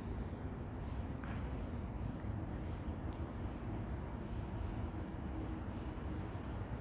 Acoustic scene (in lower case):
residential area